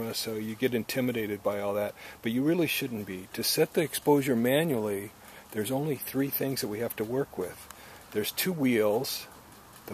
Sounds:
speech

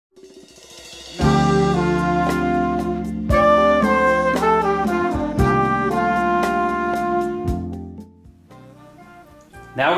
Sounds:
trumpet

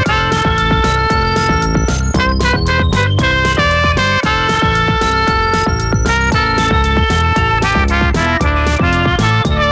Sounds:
electronic music, music

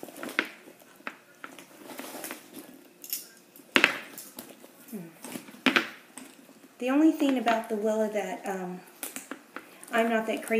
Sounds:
speech, inside a small room

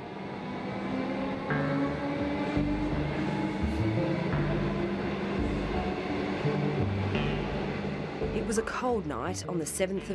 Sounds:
speech, music

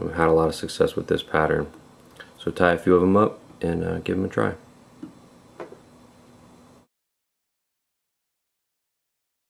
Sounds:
inside a small room, speech

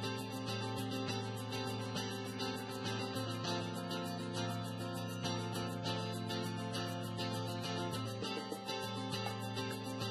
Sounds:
music

